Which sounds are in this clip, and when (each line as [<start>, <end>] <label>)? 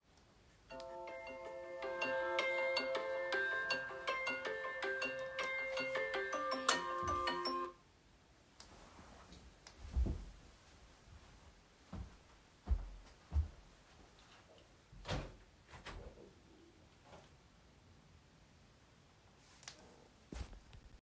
[0.66, 7.79] phone ringing
[6.62, 6.96] light switch
[8.57, 8.74] light switch
[11.87, 13.65] footsteps
[15.01, 16.49] window